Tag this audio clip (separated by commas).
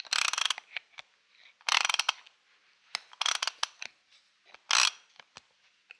Tools, Mechanisms, Ratchet